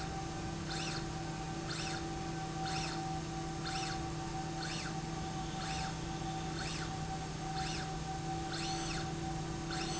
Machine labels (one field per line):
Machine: slide rail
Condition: normal